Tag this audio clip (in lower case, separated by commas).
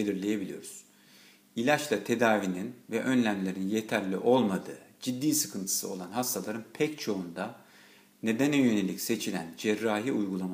speech